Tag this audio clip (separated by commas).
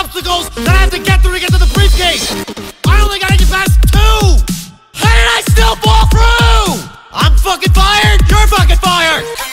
Music